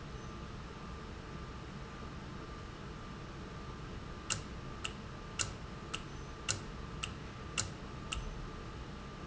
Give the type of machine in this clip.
valve